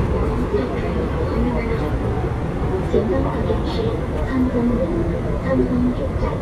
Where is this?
on a subway train